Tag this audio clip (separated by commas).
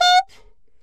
woodwind instrument, Musical instrument, Music